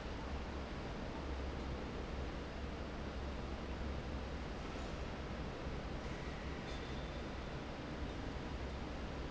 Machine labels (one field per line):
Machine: fan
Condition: normal